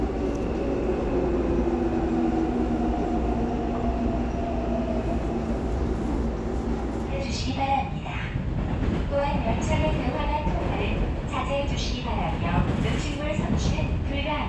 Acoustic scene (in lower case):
subway train